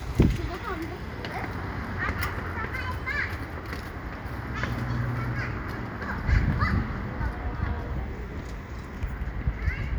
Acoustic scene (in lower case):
residential area